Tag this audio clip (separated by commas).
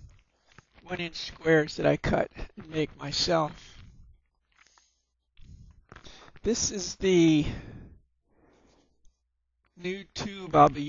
Speech